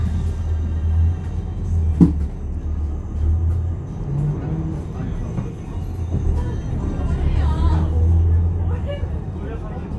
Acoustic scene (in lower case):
bus